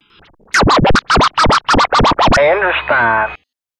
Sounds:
musical instrument, music, scratching (performance technique)

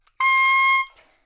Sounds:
woodwind instrument, music, musical instrument

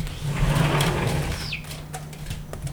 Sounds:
domestic sounds, door, sliding door

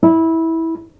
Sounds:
guitar, music, musical instrument, plucked string instrument

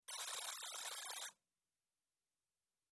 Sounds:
alarm

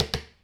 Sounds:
tap

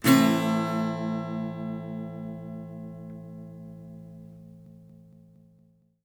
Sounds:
guitar, musical instrument, plucked string instrument, strum, music

